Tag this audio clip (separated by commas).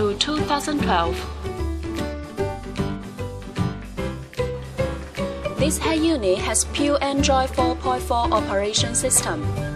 Speech, Music